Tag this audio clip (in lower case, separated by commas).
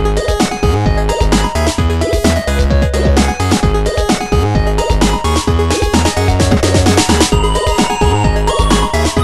music